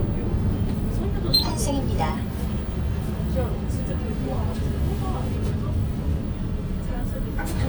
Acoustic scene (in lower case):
bus